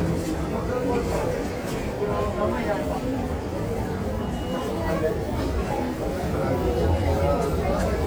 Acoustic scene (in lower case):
crowded indoor space